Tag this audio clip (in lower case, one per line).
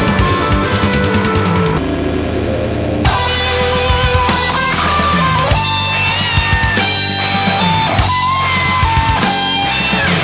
rock music
heavy metal
music